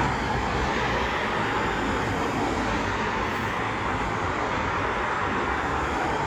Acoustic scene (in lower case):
street